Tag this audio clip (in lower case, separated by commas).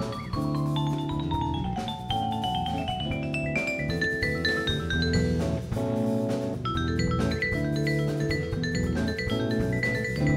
percussion, musical instrument, music, playing vibraphone, vibraphone